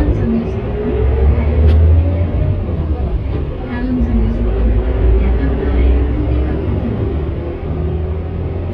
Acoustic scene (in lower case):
bus